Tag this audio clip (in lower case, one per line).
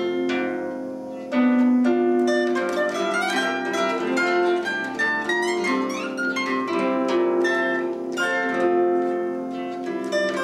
music